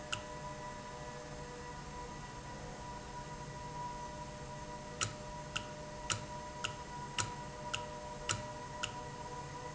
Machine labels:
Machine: valve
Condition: normal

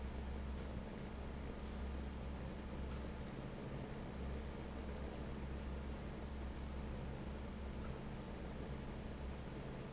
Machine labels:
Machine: fan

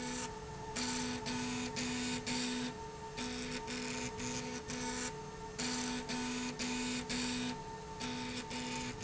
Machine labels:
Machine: slide rail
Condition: abnormal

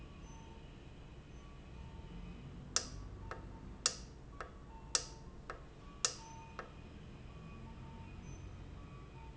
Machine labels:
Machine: valve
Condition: normal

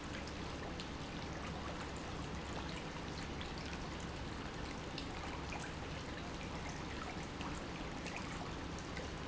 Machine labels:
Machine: pump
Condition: normal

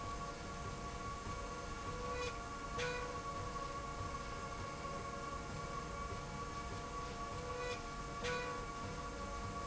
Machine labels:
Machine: slide rail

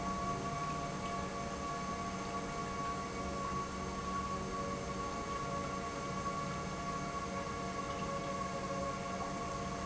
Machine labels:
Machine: pump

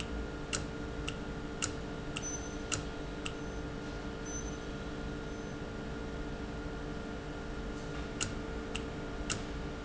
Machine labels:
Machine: valve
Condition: normal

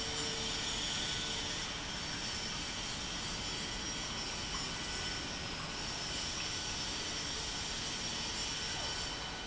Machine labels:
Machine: pump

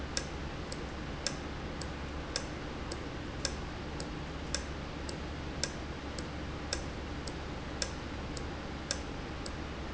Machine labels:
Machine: valve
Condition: normal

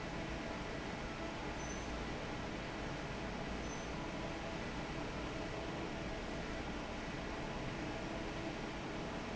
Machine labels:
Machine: fan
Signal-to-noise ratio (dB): 0 dB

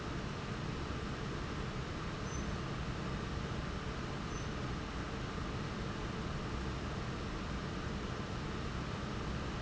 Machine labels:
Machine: fan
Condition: abnormal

